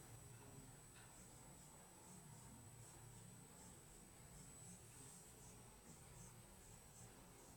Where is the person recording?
in an elevator